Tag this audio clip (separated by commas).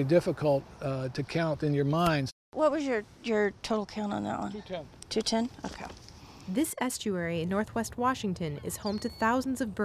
Speech